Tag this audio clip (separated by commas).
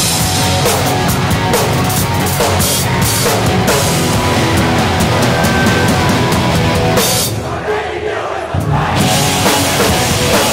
Speech, Music